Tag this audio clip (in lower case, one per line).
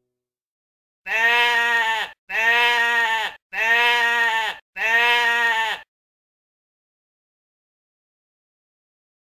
sheep bleating